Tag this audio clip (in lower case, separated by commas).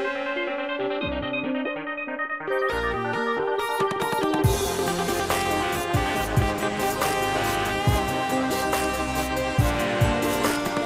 music